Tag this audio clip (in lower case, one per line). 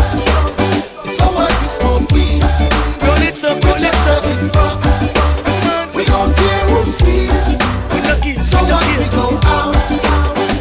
music
afrobeat